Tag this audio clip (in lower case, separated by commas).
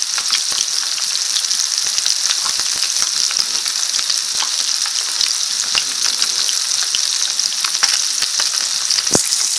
domestic sounds, frying (food)